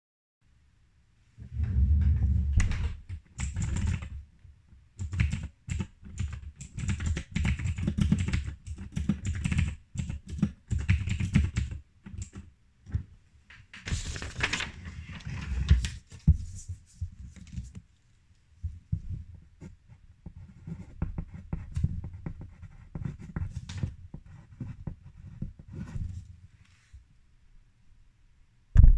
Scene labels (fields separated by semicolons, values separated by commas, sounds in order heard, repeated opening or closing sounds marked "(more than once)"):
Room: office; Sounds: keyboard typing